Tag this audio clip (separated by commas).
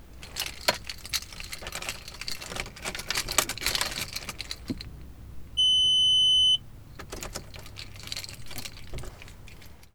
Motor vehicle (road), Vehicle, Car